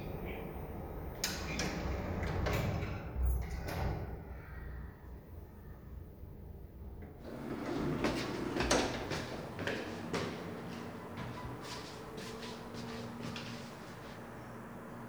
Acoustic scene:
elevator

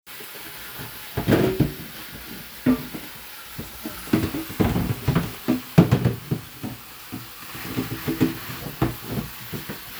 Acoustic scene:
kitchen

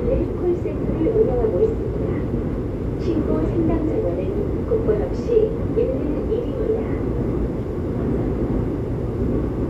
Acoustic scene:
subway train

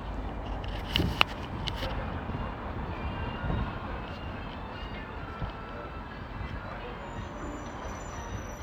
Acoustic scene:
residential area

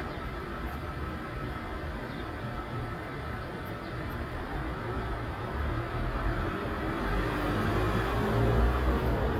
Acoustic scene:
street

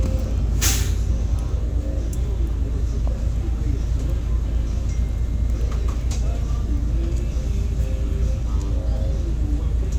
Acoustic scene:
bus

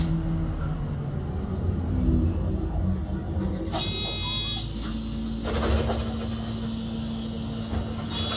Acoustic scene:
bus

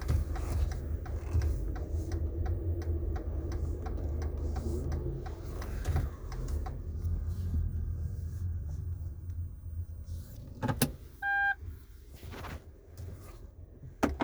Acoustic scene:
car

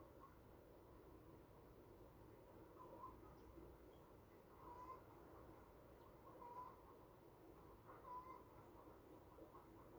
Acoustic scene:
park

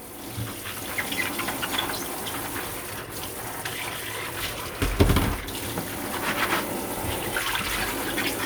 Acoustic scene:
kitchen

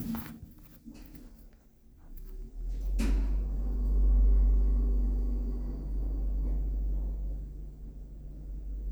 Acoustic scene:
elevator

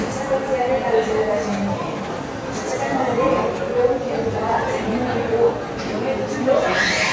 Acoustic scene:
cafe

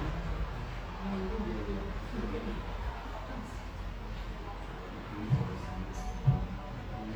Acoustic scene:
cafe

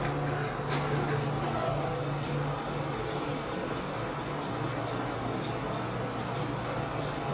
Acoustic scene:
elevator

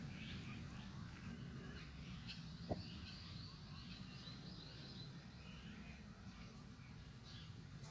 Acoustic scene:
park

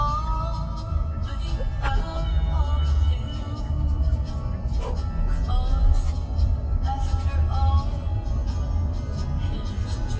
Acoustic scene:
car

